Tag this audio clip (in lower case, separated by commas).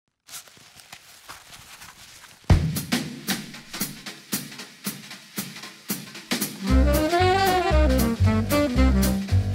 music, drum, drum roll